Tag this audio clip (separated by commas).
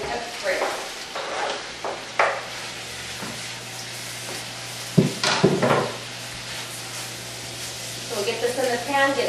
Speech